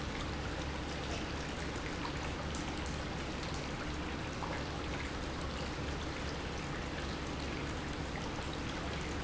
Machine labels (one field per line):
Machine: pump